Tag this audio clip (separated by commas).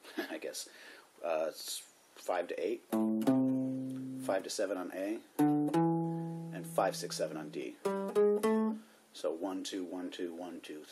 Music, Speech, Musical instrument, Guitar, Plucked string instrument